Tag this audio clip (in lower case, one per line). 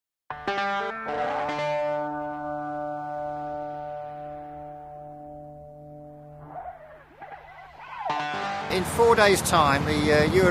speech
outside, urban or man-made
music